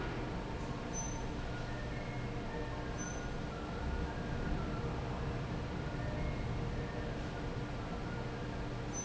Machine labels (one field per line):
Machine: fan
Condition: normal